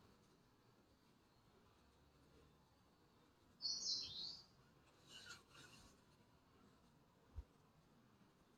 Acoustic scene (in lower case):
park